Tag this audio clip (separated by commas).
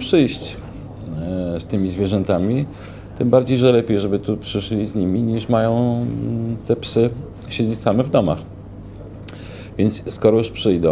Speech